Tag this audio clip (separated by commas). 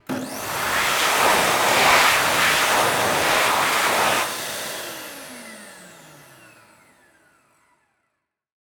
home sounds